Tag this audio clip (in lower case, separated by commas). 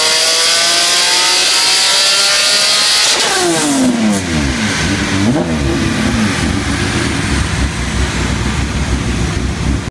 car passing by